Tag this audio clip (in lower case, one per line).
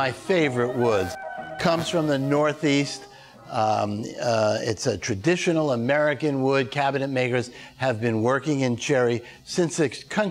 music
speech